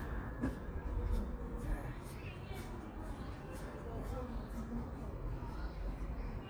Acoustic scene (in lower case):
park